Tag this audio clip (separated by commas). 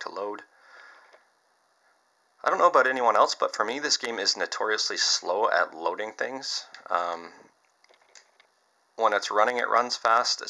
Speech, inside a small room